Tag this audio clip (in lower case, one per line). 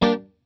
guitar
music
plucked string instrument
musical instrument